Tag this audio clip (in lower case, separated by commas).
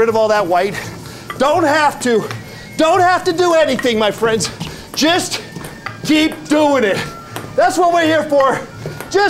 ping, speech, music